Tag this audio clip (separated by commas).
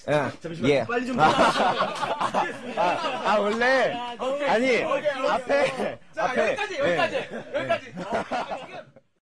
Speech